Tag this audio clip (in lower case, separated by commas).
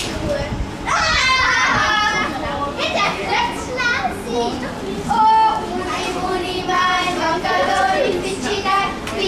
speech